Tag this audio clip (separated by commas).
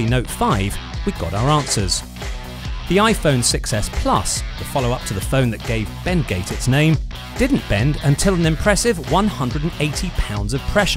Music, Speech